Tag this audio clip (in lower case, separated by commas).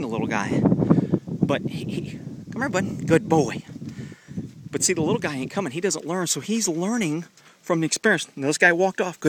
speech